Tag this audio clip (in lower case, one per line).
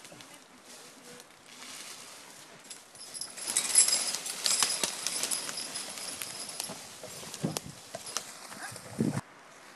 speech
outside, rural or natural